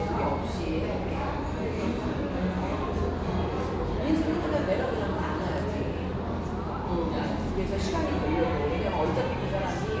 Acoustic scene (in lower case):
cafe